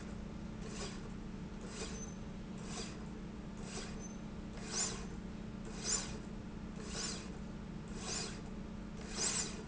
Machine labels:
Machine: slide rail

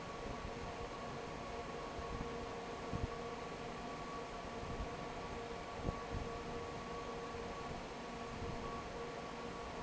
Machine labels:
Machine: fan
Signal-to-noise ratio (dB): 6 dB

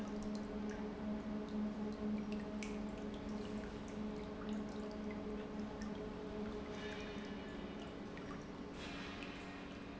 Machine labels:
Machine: pump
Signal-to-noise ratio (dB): 0 dB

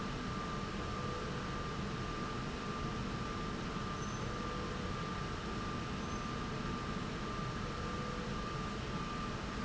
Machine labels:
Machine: slide rail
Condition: normal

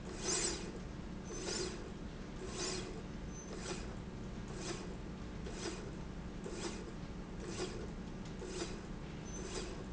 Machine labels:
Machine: slide rail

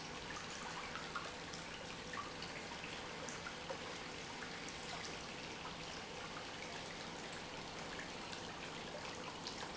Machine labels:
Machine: pump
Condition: normal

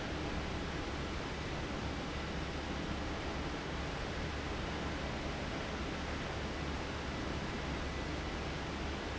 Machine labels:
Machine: fan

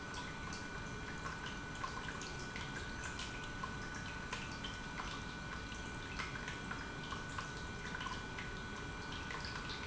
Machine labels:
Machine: pump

